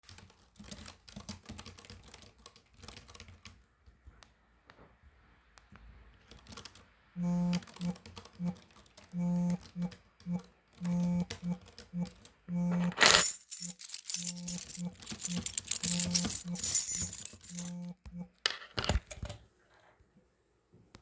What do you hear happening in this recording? I was typing on my keyboard when my phone timer went off. I reached over and grabbed my keys from the desk.